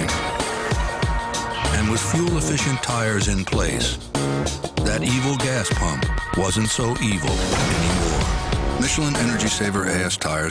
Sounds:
speech, music

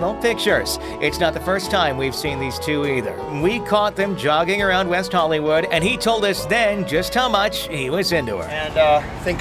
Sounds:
speech, music

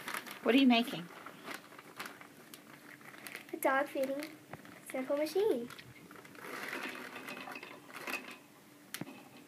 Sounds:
child speech, speech

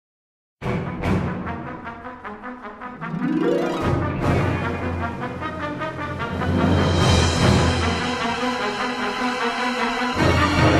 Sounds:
music, brass instrument

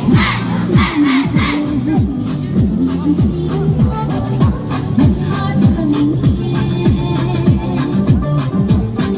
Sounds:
people shuffling

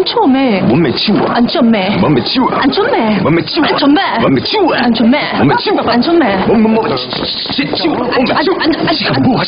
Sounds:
speech

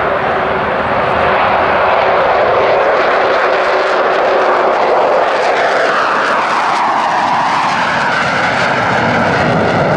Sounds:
airplane flyby

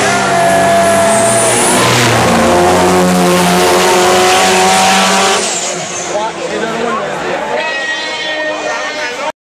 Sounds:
truck, vehicle, speech

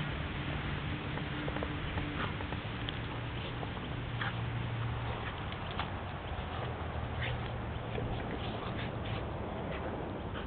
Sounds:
animal, pets, dog

